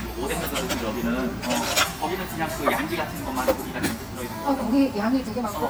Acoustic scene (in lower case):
restaurant